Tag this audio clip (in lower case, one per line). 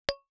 tap
glass